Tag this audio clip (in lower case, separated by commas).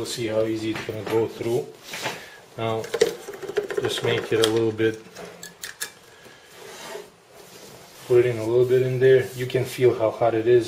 speech